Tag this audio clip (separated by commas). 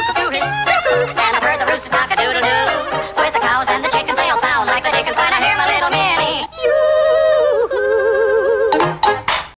Music